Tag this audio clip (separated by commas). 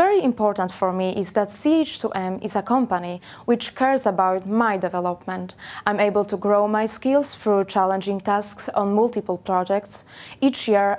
Speech